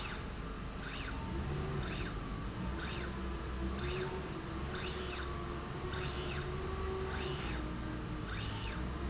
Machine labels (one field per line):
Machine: slide rail